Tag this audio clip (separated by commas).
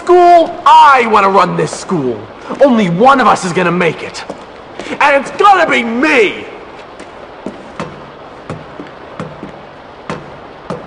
Speech